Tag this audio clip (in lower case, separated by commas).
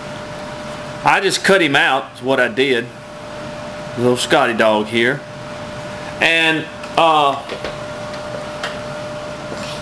speech